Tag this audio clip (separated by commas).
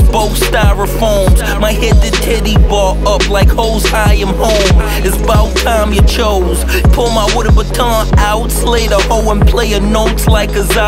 Music